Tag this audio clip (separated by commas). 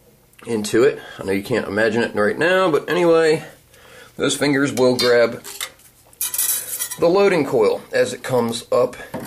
dishes, pots and pans, silverware